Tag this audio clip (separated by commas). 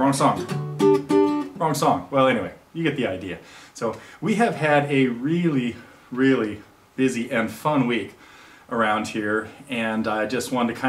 Musical instrument, Music, Guitar, Speech, Plucked string instrument